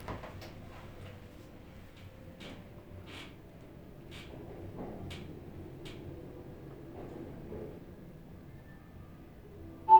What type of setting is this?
elevator